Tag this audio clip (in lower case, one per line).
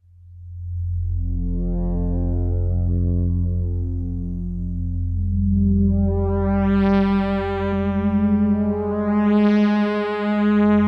synthesizer
music
playing synthesizer